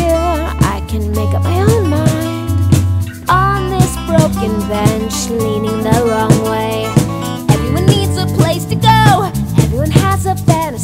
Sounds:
music, pop music, rhythm and blues

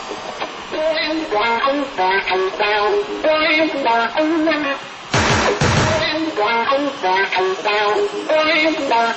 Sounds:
music, musical instrument

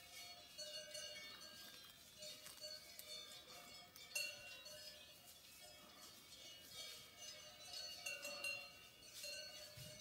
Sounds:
bovinae cowbell

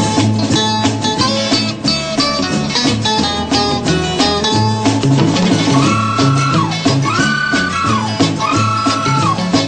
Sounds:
music

